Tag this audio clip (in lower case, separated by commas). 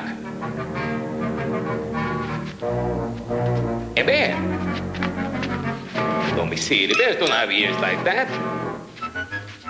speech, music